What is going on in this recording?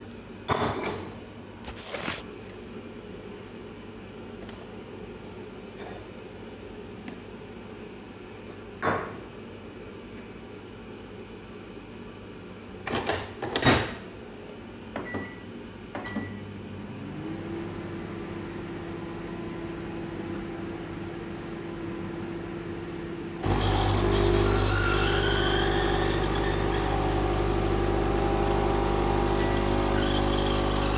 I took a cup, placed it on the coffee machine, waited, then started the microwave, then started making coffie, then the microwave stopped.